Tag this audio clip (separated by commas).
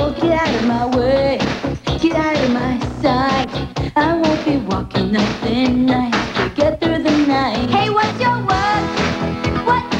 Music